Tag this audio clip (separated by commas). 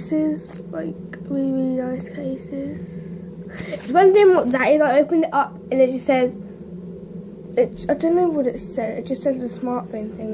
Speech